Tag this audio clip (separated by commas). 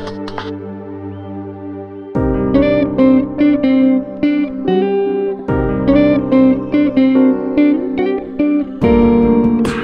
Music